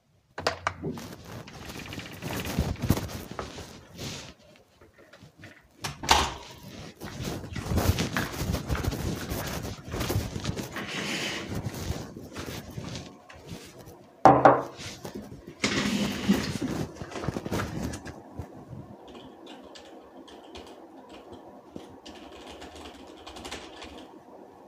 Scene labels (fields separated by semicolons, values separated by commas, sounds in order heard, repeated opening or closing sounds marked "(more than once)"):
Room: living room; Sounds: door (more than once), footsteps, cutlery and dishes, keyboard typing